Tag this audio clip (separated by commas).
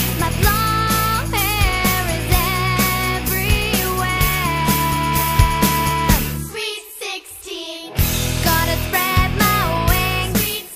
Music